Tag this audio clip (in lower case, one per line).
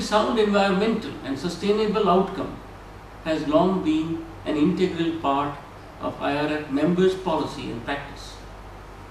narration
male speech
speech